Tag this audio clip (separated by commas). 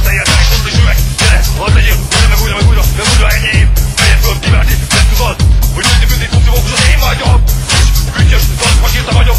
Music